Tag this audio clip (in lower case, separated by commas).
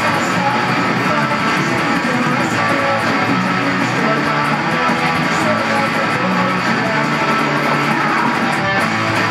musical instrument, plucked string instrument, bass guitar, guitar, strum, music